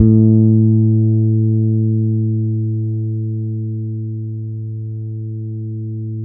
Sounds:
music
musical instrument
guitar
plucked string instrument
bass guitar

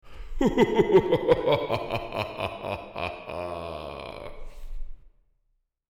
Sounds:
human voice
laughter

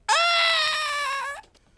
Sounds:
screaming
human voice

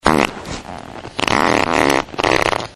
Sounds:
fart

